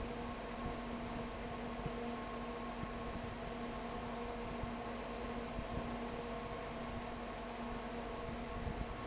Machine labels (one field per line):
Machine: fan